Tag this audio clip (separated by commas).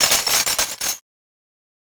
Glass